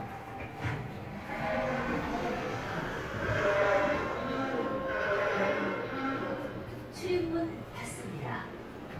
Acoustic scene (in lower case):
subway train